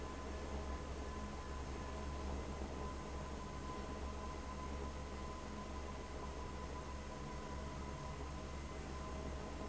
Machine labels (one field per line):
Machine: fan